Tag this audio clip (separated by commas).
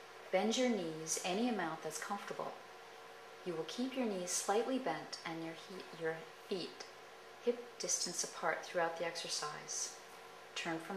Speech